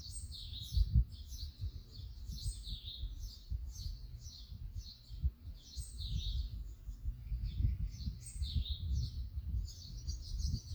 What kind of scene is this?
park